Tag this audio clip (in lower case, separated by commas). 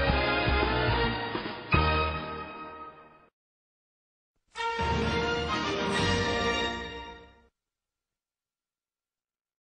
music